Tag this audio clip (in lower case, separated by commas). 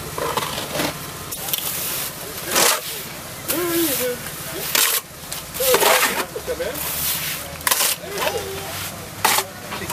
scratch, speech